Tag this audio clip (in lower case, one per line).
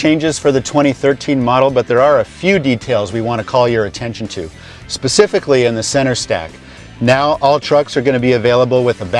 speech
music